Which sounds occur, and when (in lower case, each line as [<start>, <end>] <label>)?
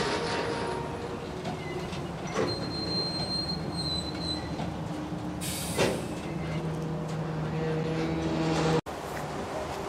[0.00, 8.78] rail transport
[1.40, 1.51] generic impact sounds
[1.52, 1.91] squeal
[1.87, 1.99] generic impact sounds
[2.26, 2.51] generic impact sounds
[2.41, 4.54] train wheels squealing
[3.13, 3.28] generic impact sounds
[4.09, 4.21] generic impact sounds
[4.53, 4.95] generic impact sounds
[5.72, 5.91] generic impact sounds
[6.07, 6.58] squeal
[6.12, 6.55] generic impact sounds
[6.69, 6.86] generic impact sounds
[7.04, 7.18] generic impact sounds
[8.84, 9.85] train
[9.10, 9.21] generic impact sounds